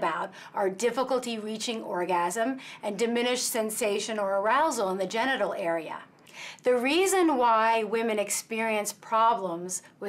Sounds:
female speech, speech

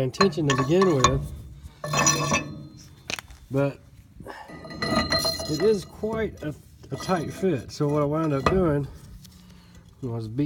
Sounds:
speech

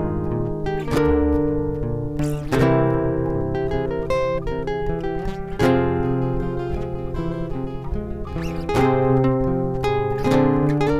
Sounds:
acoustic guitar, guitar, music, musical instrument

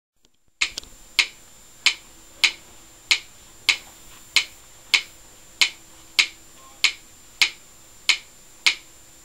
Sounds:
metronome

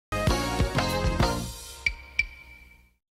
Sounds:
music

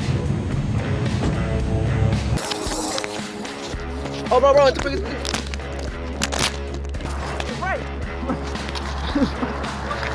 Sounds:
outside, urban or man-made, music, speech

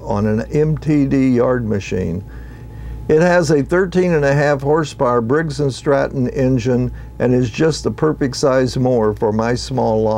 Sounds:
speech

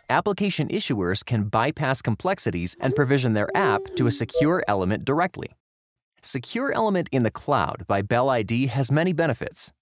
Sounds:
speech

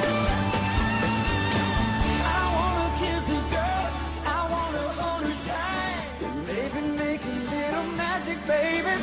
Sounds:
music of asia, music, singing

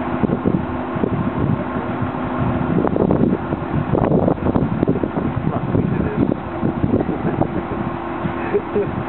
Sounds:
vehicle, speech

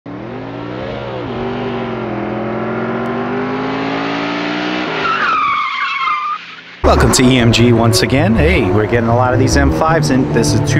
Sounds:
car, speech, vehicle

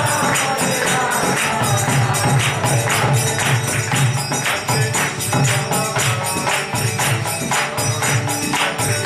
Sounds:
musical instrument, violin, music, pizzicato

